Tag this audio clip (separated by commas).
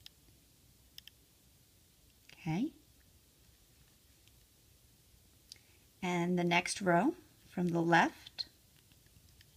Speech